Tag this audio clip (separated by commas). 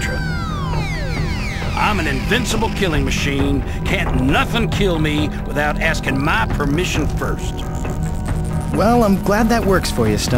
Speech, Music